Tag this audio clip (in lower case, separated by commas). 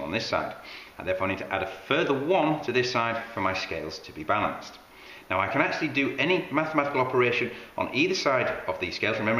inside a small room, speech